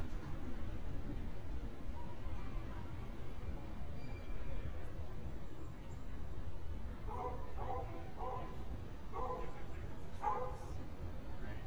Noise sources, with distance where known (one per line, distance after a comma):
dog barking or whining, far